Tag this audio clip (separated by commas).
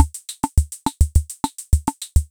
Musical instrument, Percussion, Drum kit, Music